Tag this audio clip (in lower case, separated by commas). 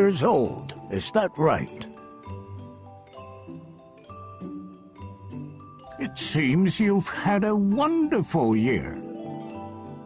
wind chime, music, speech